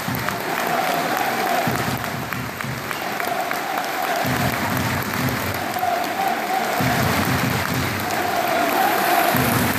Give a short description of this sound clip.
Alot of people cheering and clapping